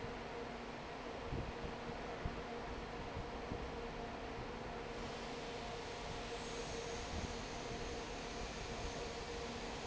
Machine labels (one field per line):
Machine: fan